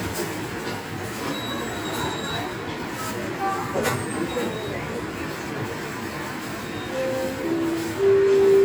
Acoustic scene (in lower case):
subway station